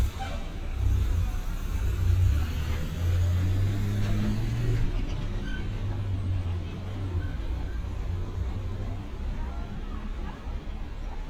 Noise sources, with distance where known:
medium-sounding engine, near

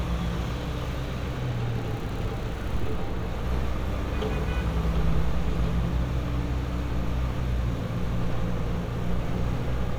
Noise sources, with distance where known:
large-sounding engine
car horn, far

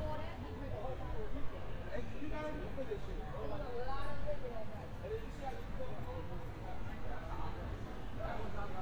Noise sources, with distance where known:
unidentified human voice

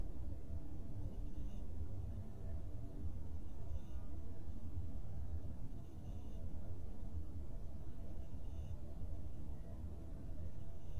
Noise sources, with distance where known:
background noise

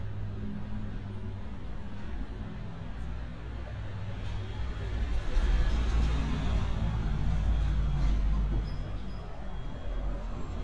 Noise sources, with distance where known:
medium-sounding engine, near

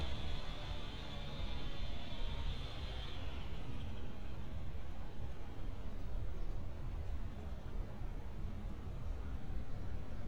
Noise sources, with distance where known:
background noise

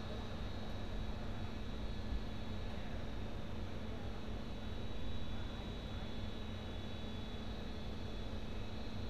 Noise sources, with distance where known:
background noise

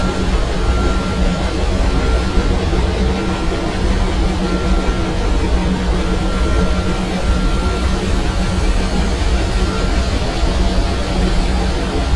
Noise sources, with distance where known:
large-sounding engine, near

